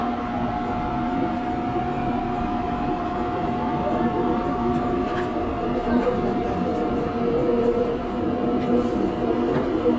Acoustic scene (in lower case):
subway train